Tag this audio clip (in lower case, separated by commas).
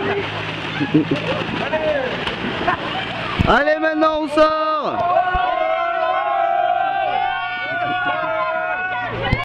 speech